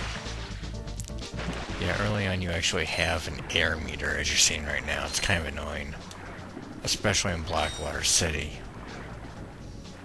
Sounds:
Music, Speech

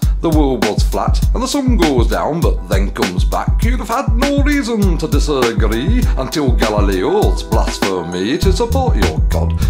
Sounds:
Music

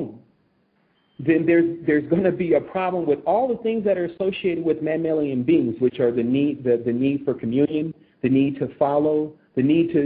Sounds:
Speech

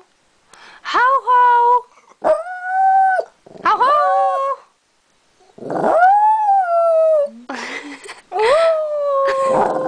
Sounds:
pets, Dog, Speech, Animal

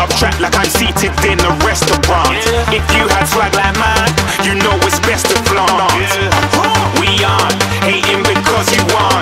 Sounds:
Music

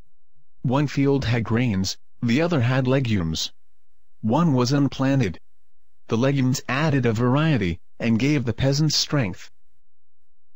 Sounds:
Speech

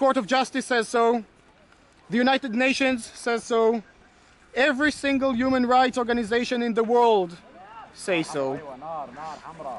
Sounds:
Speech

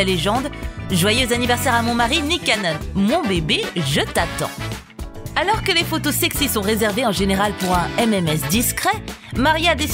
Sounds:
Music, Speech

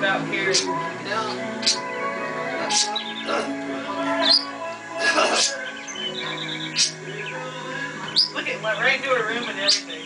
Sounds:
Speech, Animal, Music

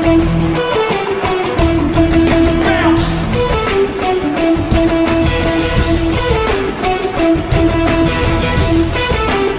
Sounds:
Music, Plucked string instrument, Guitar, Musical instrument

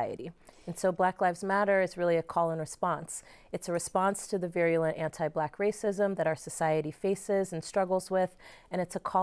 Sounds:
Speech

